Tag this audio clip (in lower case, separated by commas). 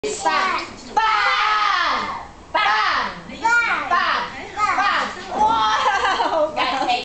speech